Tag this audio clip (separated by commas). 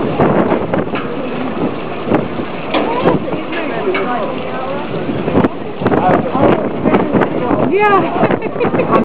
Speech